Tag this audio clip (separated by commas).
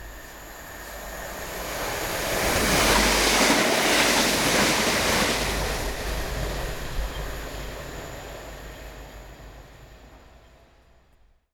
Vehicle, Rail transport, Train